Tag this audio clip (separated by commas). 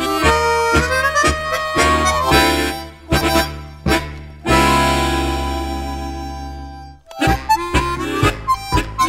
playing harmonica